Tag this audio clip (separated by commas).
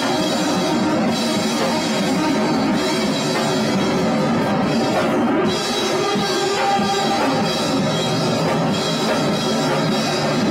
Independent music, Rock music, Music